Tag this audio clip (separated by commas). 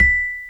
Music, Musical instrument, Percussion, Mallet percussion, xylophone